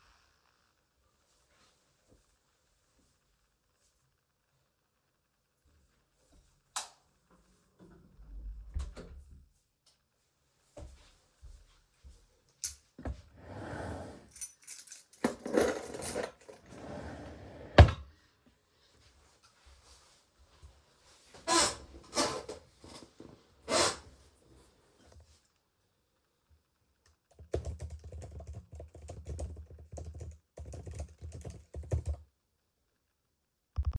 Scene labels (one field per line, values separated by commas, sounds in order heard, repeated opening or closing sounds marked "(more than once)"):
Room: office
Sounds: light switch, door, footsteps, keys, wardrobe or drawer (more than once), keyboard typing